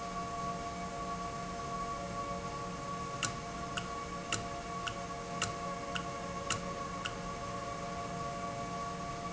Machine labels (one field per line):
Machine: valve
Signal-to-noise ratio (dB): -6 dB